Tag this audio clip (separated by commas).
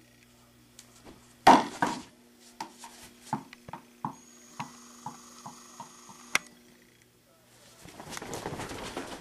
Bouncing, inside a small room